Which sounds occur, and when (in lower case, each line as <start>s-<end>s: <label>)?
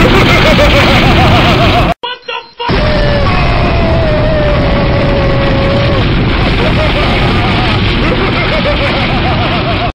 2.0s-2.7s: man speaking
2.2s-2.4s: bleep
2.6s-9.9s: sound effect
2.7s-6.0s: shout
8.0s-9.9s: laughter